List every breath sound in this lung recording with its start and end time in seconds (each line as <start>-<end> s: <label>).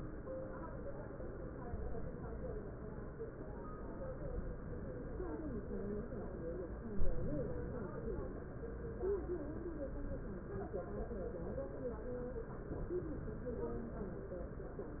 6.93-7.55 s: inhalation
9.88-10.40 s: inhalation